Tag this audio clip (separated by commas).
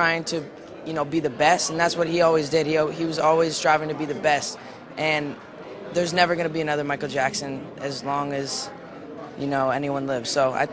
man speaking, Speech, monologue